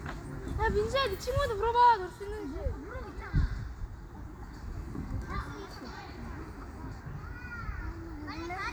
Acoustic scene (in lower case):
park